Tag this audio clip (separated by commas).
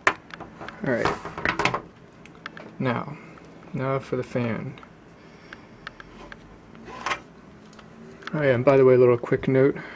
Speech